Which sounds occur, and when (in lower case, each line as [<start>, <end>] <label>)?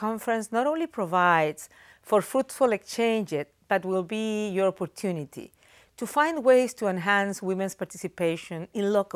[0.00, 1.65] female speech
[1.66, 1.98] breathing
[2.00, 3.41] female speech
[3.68, 5.49] female speech
[5.51, 5.92] breathing
[5.96, 9.15] female speech